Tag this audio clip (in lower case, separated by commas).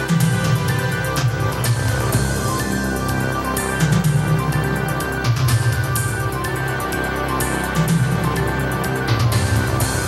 music